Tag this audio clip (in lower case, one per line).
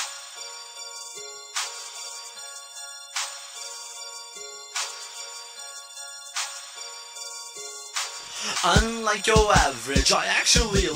music